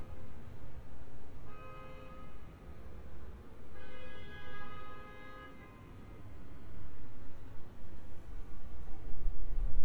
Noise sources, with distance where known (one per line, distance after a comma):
car horn, far